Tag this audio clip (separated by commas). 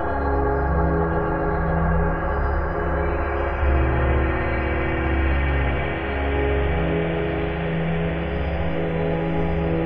Ambient music, Music